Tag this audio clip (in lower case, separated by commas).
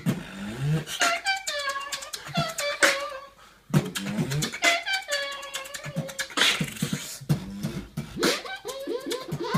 beatboxing, inside a small room